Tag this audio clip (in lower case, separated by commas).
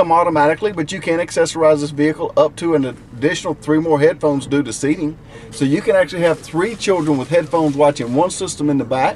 speech, music